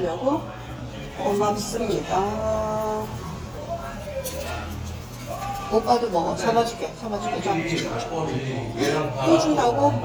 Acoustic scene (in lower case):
restaurant